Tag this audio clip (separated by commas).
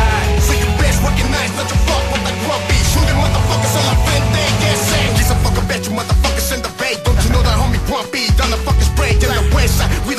Music